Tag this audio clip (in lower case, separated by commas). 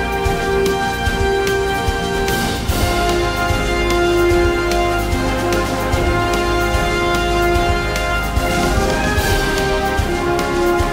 music, independent music